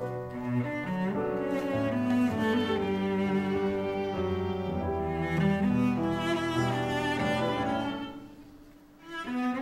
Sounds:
music

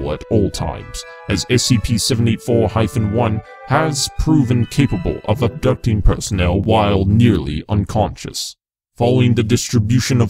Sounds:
music, speech

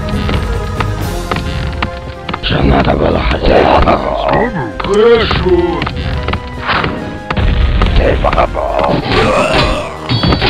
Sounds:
speech, music

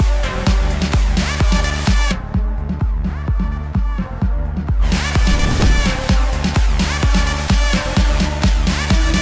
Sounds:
music, soundtrack music

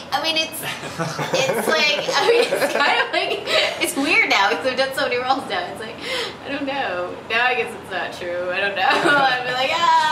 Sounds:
woman speaking, speech

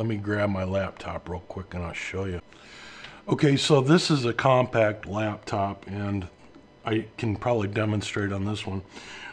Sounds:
speech

